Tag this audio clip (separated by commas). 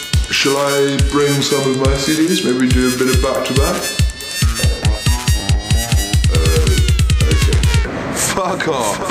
Music, Electronic music, Dubstep, Speech